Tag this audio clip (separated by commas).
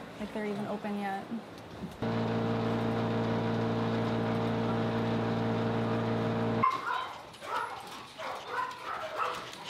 Speech